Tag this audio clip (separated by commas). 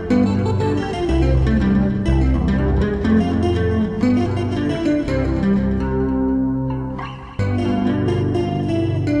Musical instrument, Guitar, Plucked string instrument, Tapping (guitar technique), Electric guitar, Music